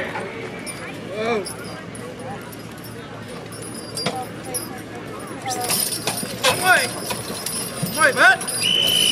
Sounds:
speech, clip-clop

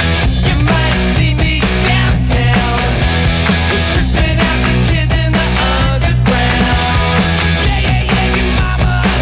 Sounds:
grunge, disco, music

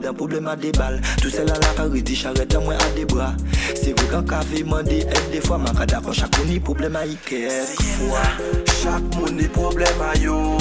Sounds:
music

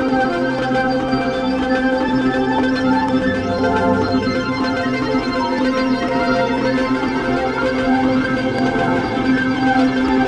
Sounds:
music

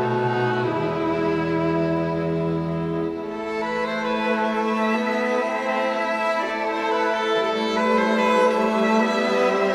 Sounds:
bowed string instrument, inside a large room or hall, music, musical instrument

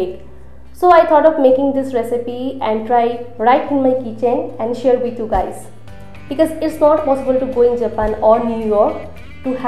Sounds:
music, speech

